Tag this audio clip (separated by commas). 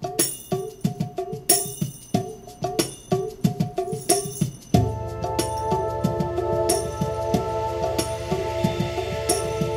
Percussion, Music